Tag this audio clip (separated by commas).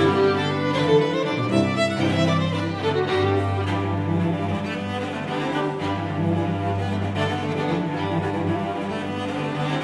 Music, fiddle, Musical instrument